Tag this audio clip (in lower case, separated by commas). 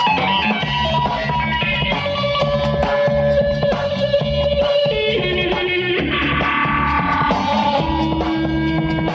progressive rock, rock music, music